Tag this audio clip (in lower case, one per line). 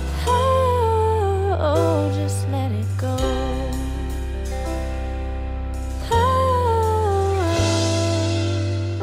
music